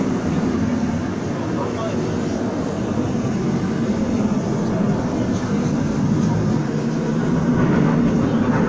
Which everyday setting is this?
subway train